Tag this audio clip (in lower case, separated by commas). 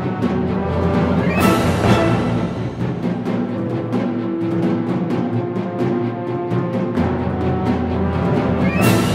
rimshot, drum, drum kit, bass drum, percussion, snare drum, drum roll